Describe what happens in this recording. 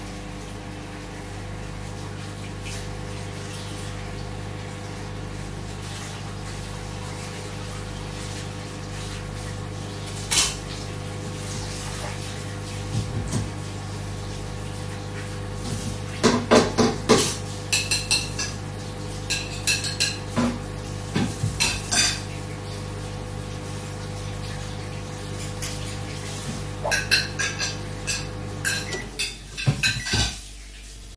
Microwave is on and the water is running and I wash dishes then the microwave stop.